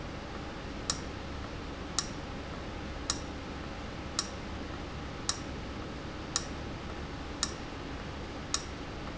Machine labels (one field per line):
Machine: valve